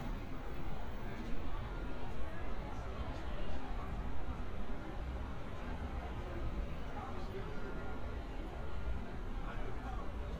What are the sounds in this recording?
person or small group talking